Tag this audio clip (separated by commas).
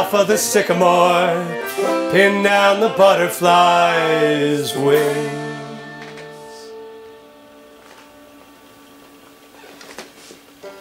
Banjo, Music